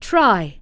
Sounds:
human voice, speech, woman speaking

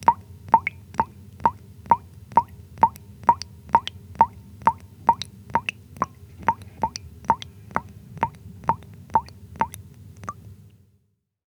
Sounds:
rain, raindrop, liquid, drip, water

